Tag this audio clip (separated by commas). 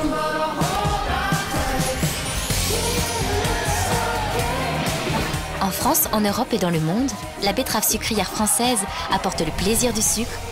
Speech, Music